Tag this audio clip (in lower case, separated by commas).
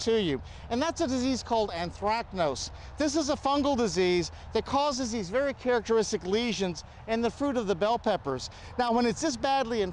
speech